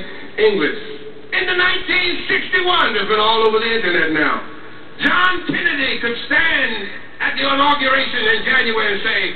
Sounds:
man speaking, Speech

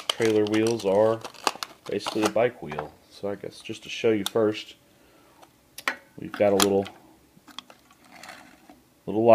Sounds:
Speech

